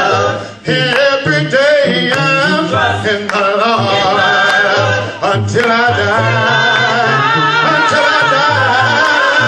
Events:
0.0s-9.4s: choir
0.0s-9.4s: music
3.3s-3.5s: clapping

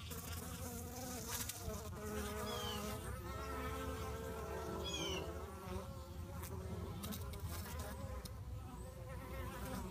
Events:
0.0s-9.9s: bee or wasp
2.4s-2.8s: bird song
4.8s-5.2s: bird song

